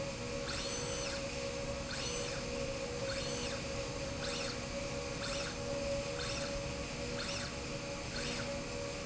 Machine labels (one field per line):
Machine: slide rail